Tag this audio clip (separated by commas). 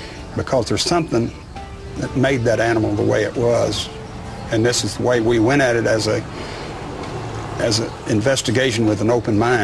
Speech, Music